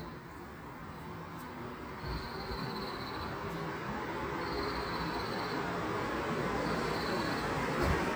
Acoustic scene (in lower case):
street